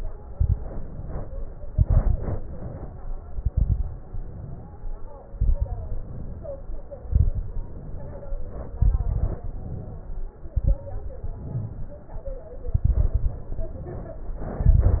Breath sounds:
0.26-0.56 s: exhalation
0.26-0.56 s: crackles
0.59-1.53 s: inhalation
1.67-2.48 s: exhalation
1.67-2.48 s: crackles
2.51-3.31 s: inhalation
3.31-4.09 s: exhalation
3.31-4.09 s: crackles
4.10-4.98 s: inhalation
5.32-6.07 s: exhalation
5.32-6.07 s: crackles
6.06-6.94 s: inhalation
7.07-7.82 s: exhalation
7.07-7.82 s: crackles
7.85-8.73 s: inhalation
8.76-9.54 s: exhalation
8.76-9.54 s: crackles
9.58-10.36 s: inhalation
10.49-10.89 s: exhalation
10.49-10.89 s: crackles
11.27-12.21 s: inhalation
12.67-13.46 s: exhalation
12.67-13.46 s: crackles
13.57-14.51 s: inhalation
14.59-15.00 s: exhalation
14.59-15.00 s: crackles

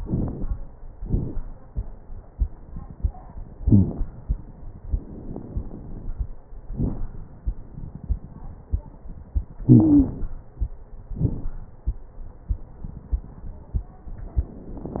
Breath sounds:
0.00-0.46 s: inhalation
0.00-0.46 s: crackles
1.03-1.37 s: exhalation
1.03-1.37 s: crackles
3.61-3.92 s: wheeze
4.85-6.28 s: inhalation
4.85-6.28 s: crackles
6.72-7.11 s: exhalation
6.72-7.11 s: crackles
9.66-10.15 s: wheeze
9.66-10.37 s: inhalation
11.16-11.54 s: exhalation
11.16-11.54 s: crackles

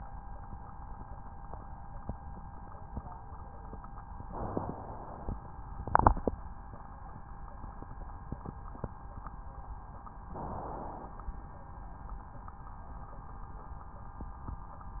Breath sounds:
4.25-5.47 s: inhalation
10.26-11.48 s: inhalation

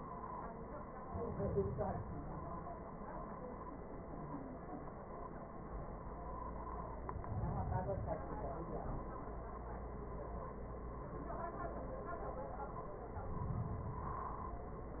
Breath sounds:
0.97-2.47 s: inhalation
7.02-8.52 s: inhalation
13.13-14.63 s: inhalation

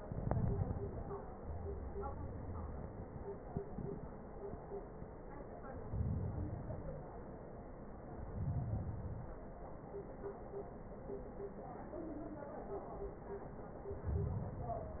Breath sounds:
0.00-1.25 s: inhalation
1.27-3.44 s: exhalation
1.37-2.85 s: wheeze
5.67-7.06 s: inhalation
6.80-7.06 s: wheeze
8.09-9.45 s: inhalation
8.55-8.80 s: wheeze
13.70-15.00 s: inhalation

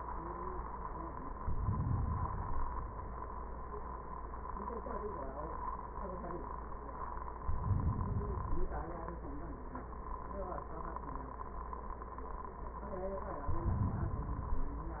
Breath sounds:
1.32-2.93 s: inhalation
7.39-9.21 s: inhalation
13.38-15.00 s: inhalation

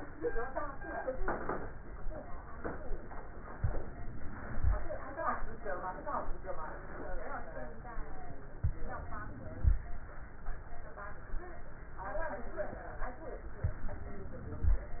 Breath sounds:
3.58-4.73 s: inhalation
8.62-9.78 s: inhalation
13.67-14.83 s: inhalation

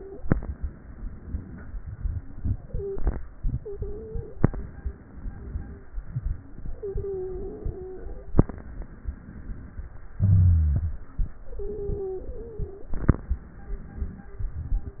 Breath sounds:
0.00-0.18 s: stridor
0.17-1.68 s: crackles
0.18-1.71 s: inhalation
1.70-4.39 s: exhalation
2.66-3.00 s: stridor
3.53-4.42 s: stridor
4.40-5.93 s: inhalation
5.96-8.44 s: exhalation
6.77-8.02 s: stridor
8.48-10.17 s: inhalation
10.20-13.31 s: exhalation
10.21-11.05 s: wheeze
11.55-12.97 s: stridor
13.33-15.00 s: inhalation
13.33-15.00 s: crackles

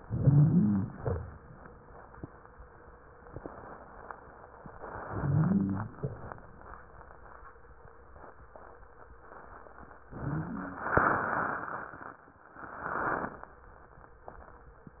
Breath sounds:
0.00-0.91 s: inhalation
0.00-0.91 s: wheeze
0.91-1.37 s: exhalation
5.04-5.93 s: inhalation
5.04-5.93 s: wheeze
5.93-6.35 s: exhalation
10.10-10.95 s: inhalation
10.10-10.95 s: wheeze

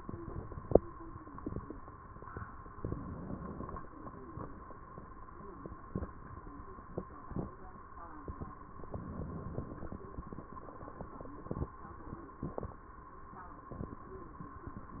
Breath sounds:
2.71-3.81 s: inhalation
8.97-10.08 s: inhalation

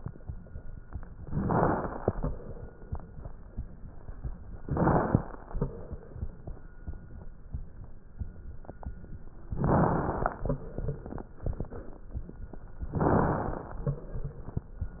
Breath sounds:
1.29-2.26 s: inhalation
1.29-2.26 s: crackles
4.59-5.56 s: inhalation
4.59-5.56 s: crackles
9.60-10.57 s: inhalation
9.60-10.57 s: crackles
12.92-13.89 s: inhalation
12.92-13.89 s: crackles

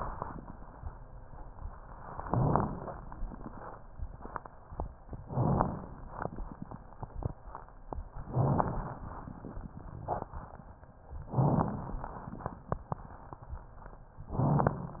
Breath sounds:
2.24-2.96 s: inhalation
5.26-5.98 s: inhalation
8.31-9.03 s: inhalation
11.29-12.01 s: inhalation
14.31-15.00 s: inhalation

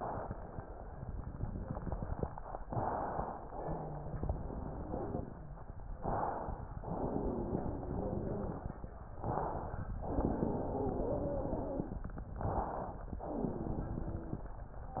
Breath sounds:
2.65-3.48 s: inhalation
3.52-5.68 s: exhalation
3.52-5.68 s: wheeze
5.94-6.77 s: inhalation
6.79-8.81 s: exhalation
6.79-8.81 s: wheeze
9.18-10.00 s: inhalation
10.02-12.05 s: exhalation
10.02-12.05 s: wheeze
12.31-13.13 s: inhalation
13.17-14.49 s: exhalation
13.17-14.49 s: wheeze
14.96-15.00 s: inhalation

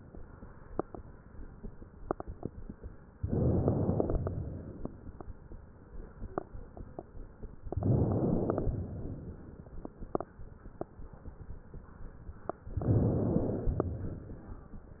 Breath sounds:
3.19-4.25 s: inhalation
4.33-5.39 s: exhalation
7.67-8.73 s: inhalation
8.79-9.85 s: exhalation
12.79-13.85 s: inhalation
13.91-14.97 s: exhalation

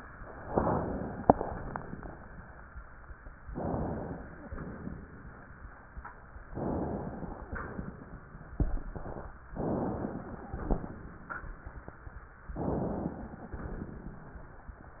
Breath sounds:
0.45-1.18 s: inhalation
1.22-2.68 s: exhalation
3.49-4.36 s: inhalation
4.35-5.52 s: exhalation
6.50-7.49 s: inhalation
7.48-8.37 s: exhalation
9.56-10.57 s: inhalation
10.55-12.25 s: exhalation
12.56-13.57 s: inhalation

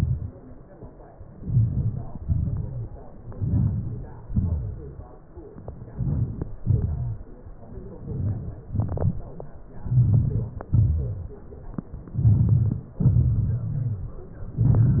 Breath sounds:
1.48-2.09 s: inhalation
2.23-2.65 s: exhalation
3.40-3.95 s: inhalation
4.32-4.75 s: exhalation
6.00-6.52 s: inhalation
6.71-7.16 s: exhalation
8.13-8.67 s: inhalation
8.77-9.21 s: exhalation
9.97-10.54 s: inhalation
10.74-11.18 s: exhalation
12.25-12.88 s: inhalation
13.04-13.66 s: exhalation
14.55-15.00 s: inhalation

